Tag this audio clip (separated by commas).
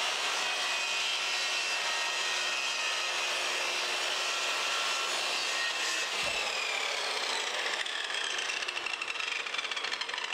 Power tool, Tools